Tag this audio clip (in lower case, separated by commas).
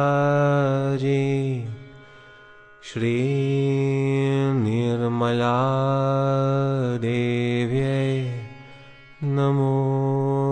music, mantra